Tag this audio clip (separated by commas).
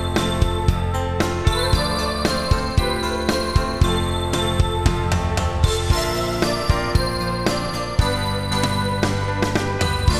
Music